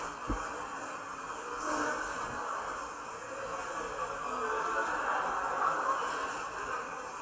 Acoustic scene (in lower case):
subway station